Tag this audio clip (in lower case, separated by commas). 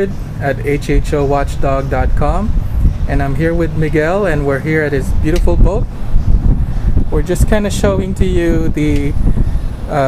speech, water vehicle